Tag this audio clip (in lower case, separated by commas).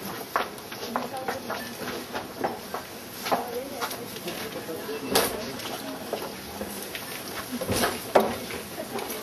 speech